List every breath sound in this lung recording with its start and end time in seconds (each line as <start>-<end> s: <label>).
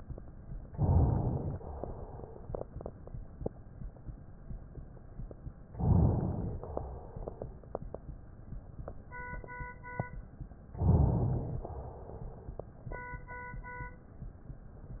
0.68-1.56 s: inhalation
1.56-2.41 s: exhalation
5.75-6.58 s: inhalation
6.58-7.48 s: exhalation
10.80-11.69 s: inhalation
11.69-12.58 s: exhalation